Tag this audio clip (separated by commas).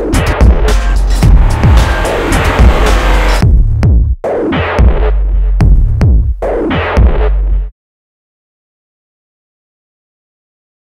Throbbing